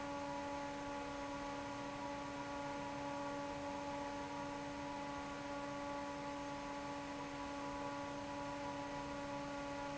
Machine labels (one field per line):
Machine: fan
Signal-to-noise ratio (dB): 6 dB